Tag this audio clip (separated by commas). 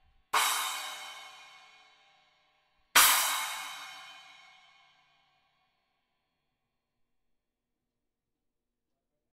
Music